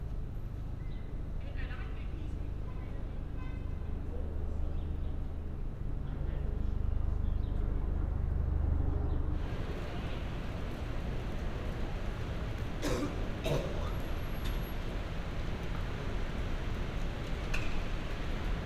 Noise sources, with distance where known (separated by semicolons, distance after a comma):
unidentified human voice